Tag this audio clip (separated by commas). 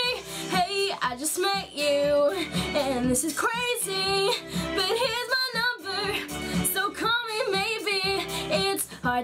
Female singing, Music